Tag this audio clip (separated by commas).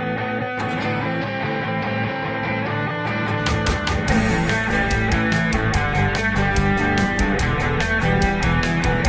Progressive rock, Rock music